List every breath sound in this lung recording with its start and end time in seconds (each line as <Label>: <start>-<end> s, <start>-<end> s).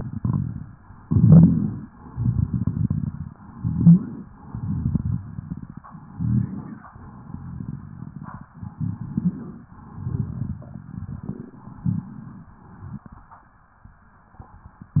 Inhalation: 1.04-1.86 s, 3.45-4.23 s, 5.98-6.83 s, 8.61-9.58 s, 11.76-12.60 s
Exhalation: 0.00-0.78 s, 1.94-3.36 s, 4.40-5.77 s, 6.98-8.43 s, 9.77-11.21 s
Crackles: 0.00-0.78 s, 1.04-1.86 s, 1.94-3.36 s, 3.45-4.23 s, 4.40-5.77 s, 5.98-6.83 s, 6.98-8.43 s, 8.61-9.58 s, 9.77-11.21 s, 11.76-12.60 s